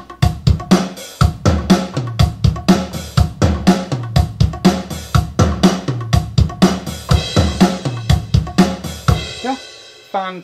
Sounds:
Musical instrument, Drum machine, Music, Speech, playing drum kit, Drum kit

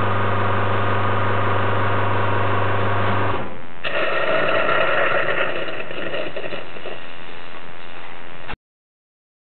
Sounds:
Gush

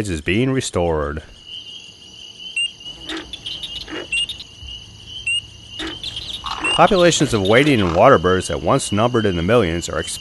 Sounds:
Bird, Speech, outside, rural or natural

